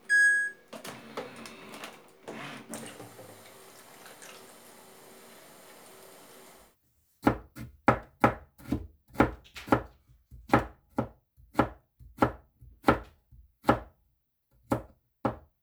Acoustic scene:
kitchen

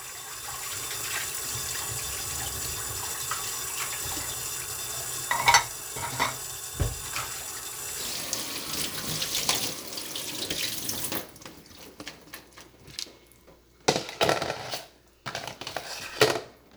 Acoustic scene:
kitchen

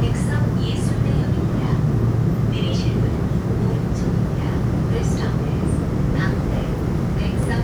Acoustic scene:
subway train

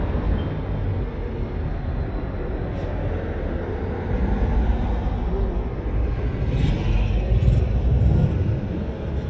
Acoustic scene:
street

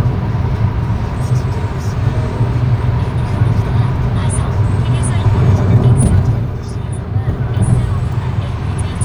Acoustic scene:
car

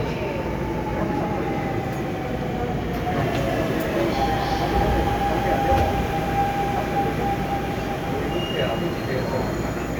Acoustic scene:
subway train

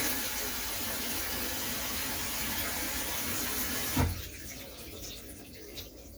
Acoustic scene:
kitchen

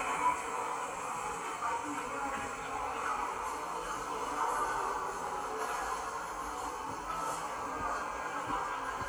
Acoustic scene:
subway station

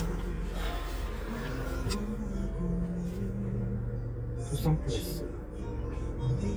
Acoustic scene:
car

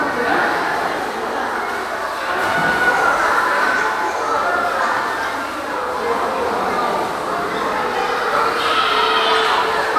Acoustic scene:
crowded indoor space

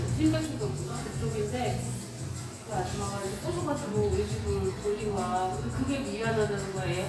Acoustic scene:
cafe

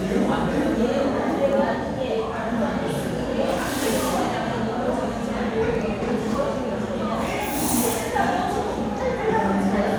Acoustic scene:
crowded indoor space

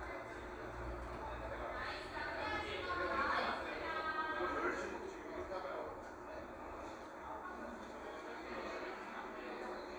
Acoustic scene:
cafe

